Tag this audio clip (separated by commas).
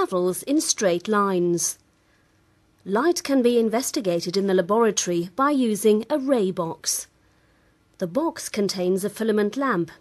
Speech